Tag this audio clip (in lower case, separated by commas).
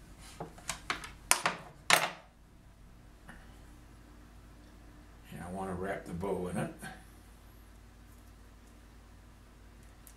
speech, inside a small room